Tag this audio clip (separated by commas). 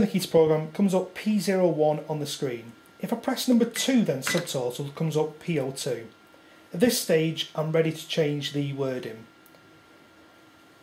Speech